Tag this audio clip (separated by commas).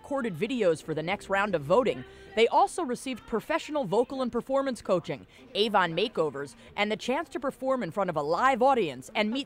Speech